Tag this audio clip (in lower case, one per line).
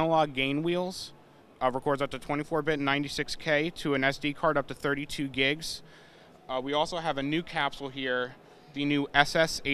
speech